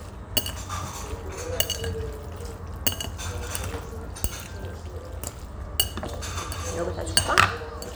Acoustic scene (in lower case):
restaurant